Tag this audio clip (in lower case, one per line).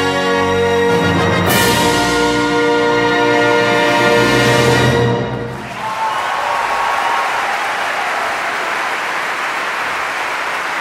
music
applause
crowd